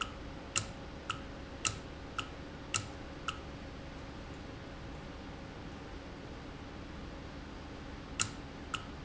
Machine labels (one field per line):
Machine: valve